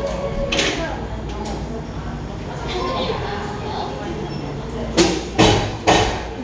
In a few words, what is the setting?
cafe